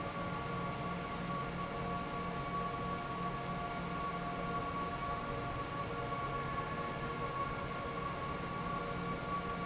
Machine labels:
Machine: fan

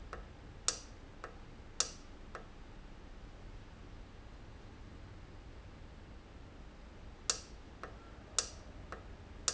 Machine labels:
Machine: valve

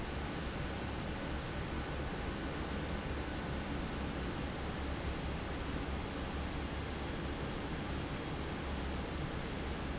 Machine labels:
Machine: fan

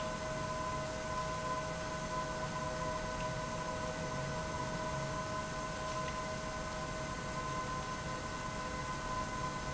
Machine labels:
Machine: pump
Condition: abnormal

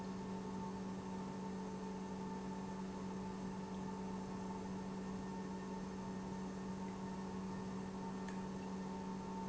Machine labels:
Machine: pump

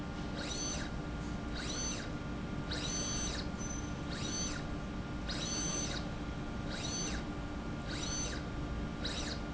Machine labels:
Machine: slide rail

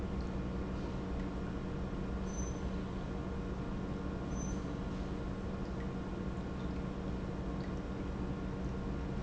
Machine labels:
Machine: pump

